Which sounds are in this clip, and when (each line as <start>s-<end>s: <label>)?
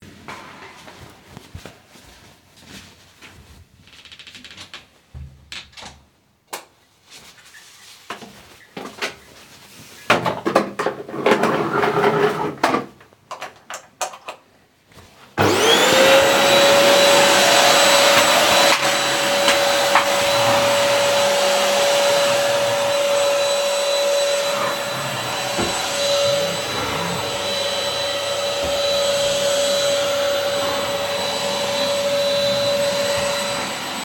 0.0s-3.8s: footsteps
0.1s-6.2s: door
6.5s-10.2s: light switch
8.1s-9.6s: footsteps
10.5s-15.0s: light switch
15.3s-34.0s: vacuum cleaner
26.2s-27.7s: phone ringing